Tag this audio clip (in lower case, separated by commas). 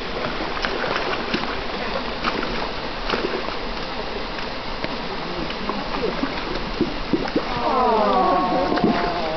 animal, speech